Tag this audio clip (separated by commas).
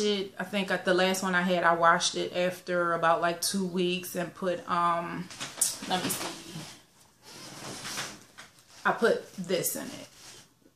Speech